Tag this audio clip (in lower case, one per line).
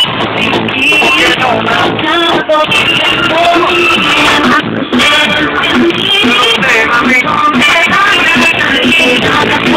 music